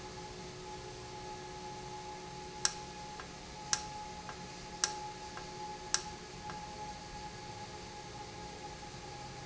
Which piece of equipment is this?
valve